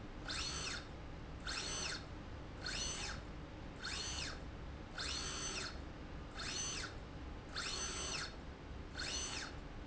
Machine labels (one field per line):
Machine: slide rail